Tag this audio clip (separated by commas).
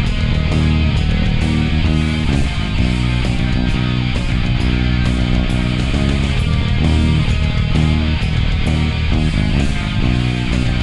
Music, Electric guitar, playing bass guitar, Plucked string instrument, Bass guitar, Musical instrument, Guitar